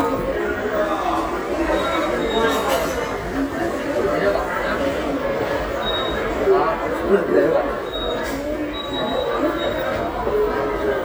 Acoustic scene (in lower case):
subway station